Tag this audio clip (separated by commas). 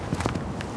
Walk